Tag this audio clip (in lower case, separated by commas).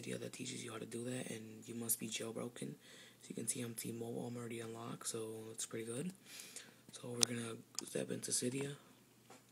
inside a small room, speech